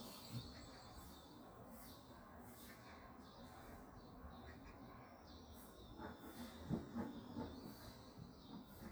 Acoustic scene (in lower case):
park